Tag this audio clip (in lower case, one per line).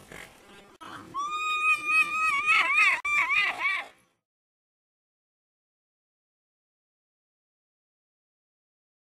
whinny
horse